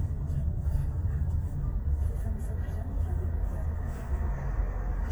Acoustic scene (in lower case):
car